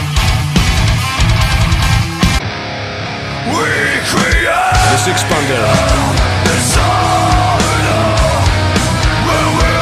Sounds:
Music, Speech

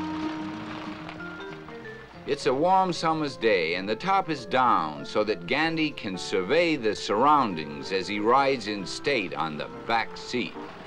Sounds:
Music, Speech

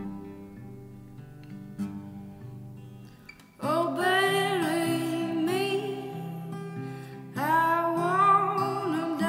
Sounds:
Music

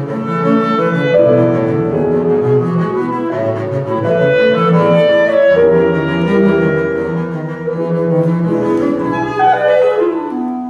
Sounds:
Musical instrument, Clarinet, Cello, Keyboard (musical), Bowed string instrument, Double bass, Music

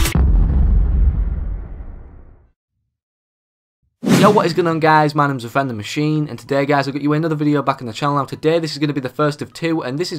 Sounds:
Sound effect

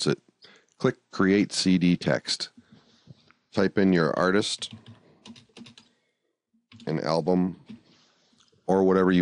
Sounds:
Computer keyboard

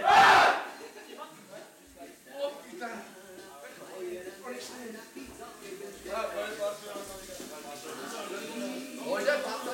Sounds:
Music, Speech

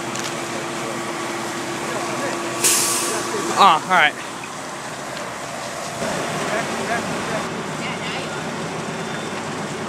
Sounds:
Fire, Speech

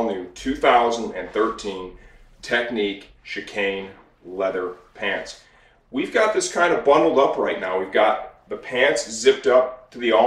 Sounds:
Speech

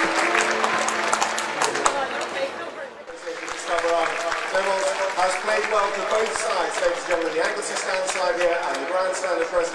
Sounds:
Speech

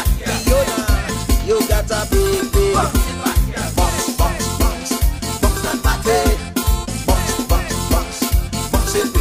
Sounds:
Music

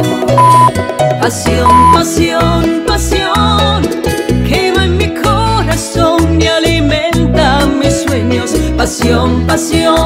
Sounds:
Music of Latin America, Salsa music, Music

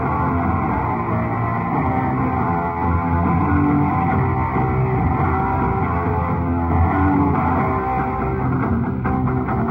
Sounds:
Music, Rock music

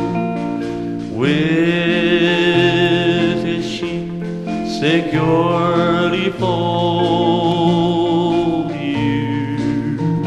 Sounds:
Music, Marimba, Vibraphone, Singing

